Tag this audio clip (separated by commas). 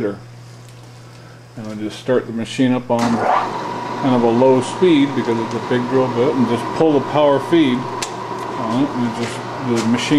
Speech